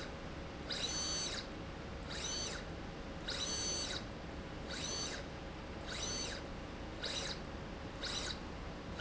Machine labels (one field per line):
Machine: slide rail